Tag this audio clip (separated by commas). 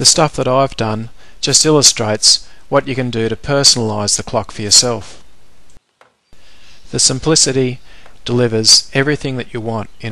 Speech